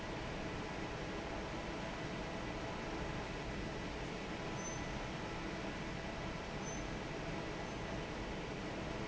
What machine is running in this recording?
fan